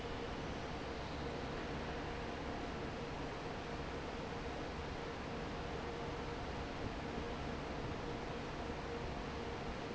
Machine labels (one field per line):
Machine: fan